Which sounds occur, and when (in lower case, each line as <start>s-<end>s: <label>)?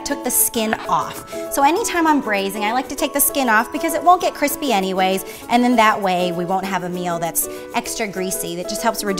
0.0s-1.1s: female speech
0.0s-9.1s: music
1.3s-5.2s: female speech
5.2s-5.4s: breathing
5.4s-7.4s: female speech
7.5s-7.6s: breathing
7.7s-9.1s: female speech